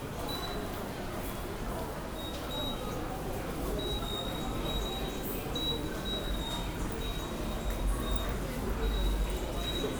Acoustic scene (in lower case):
subway station